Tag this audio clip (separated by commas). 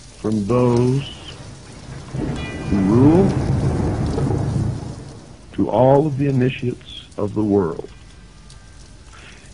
Thunder, Thunderstorm, Rain on surface, Rain